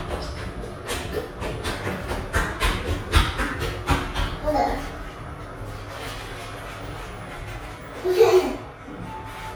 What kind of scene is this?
elevator